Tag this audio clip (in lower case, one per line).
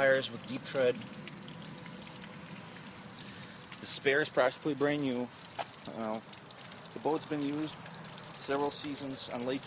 speech